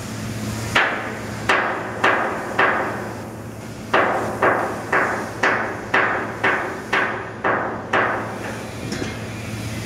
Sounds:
Hammer, Wind, Ship, Boat, Wind noise (microphone)

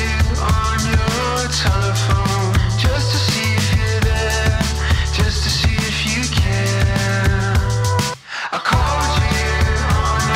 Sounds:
Music

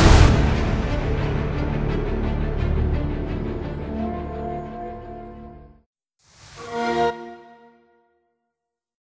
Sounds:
Music

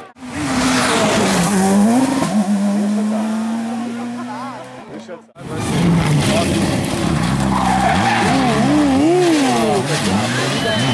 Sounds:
Speech

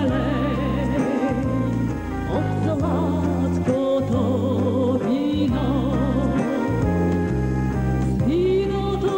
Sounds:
Music

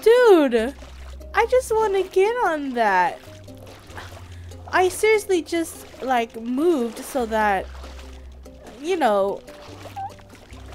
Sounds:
Speech

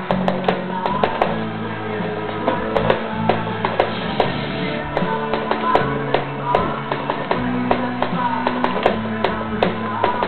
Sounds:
Musical instrument, Music, Guitar

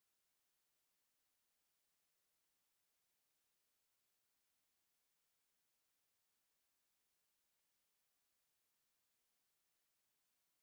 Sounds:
firing cannon

